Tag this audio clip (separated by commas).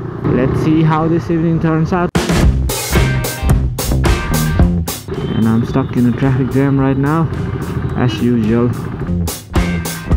outside, urban or man-made, Music